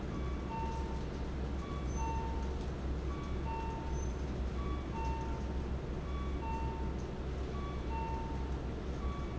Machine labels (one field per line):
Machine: fan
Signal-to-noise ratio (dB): -6 dB